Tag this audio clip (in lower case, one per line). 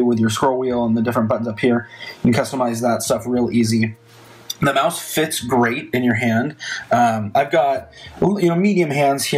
speech